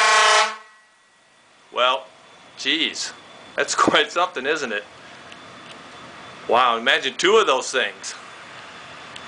Horn and man speaking